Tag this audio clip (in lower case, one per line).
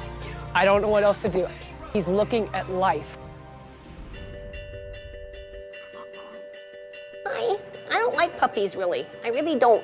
music
animal
speech
pets
outside, rural or natural